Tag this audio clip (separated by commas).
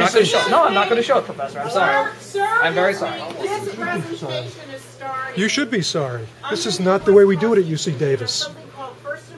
Female speech, Speech, man speaking, Conversation